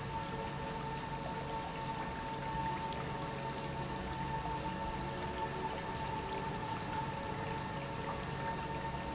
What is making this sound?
pump